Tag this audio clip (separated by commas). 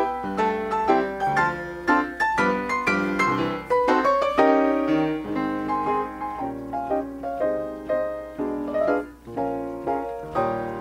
Musical instrument, Piano, Keyboard (musical), Music